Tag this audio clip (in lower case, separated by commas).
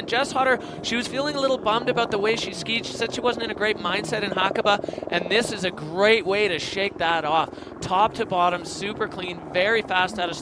skiing